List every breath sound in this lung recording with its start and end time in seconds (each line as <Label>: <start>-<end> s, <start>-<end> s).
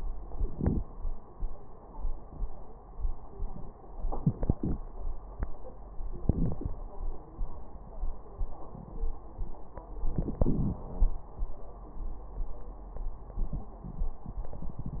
Inhalation: 0.34-0.83 s, 4.09-4.78 s, 6.24-6.72 s, 10.11-10.82 s